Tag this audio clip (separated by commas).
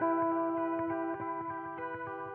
Guitar, Music, Plucked string instrument, Musical instrument, Electric guitar